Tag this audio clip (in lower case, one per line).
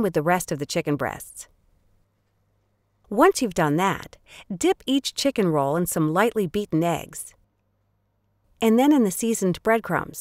speech